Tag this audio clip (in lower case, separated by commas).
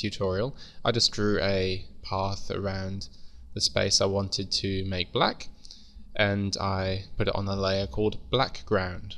speech